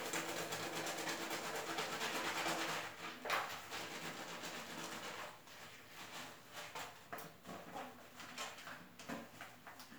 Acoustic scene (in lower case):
restroom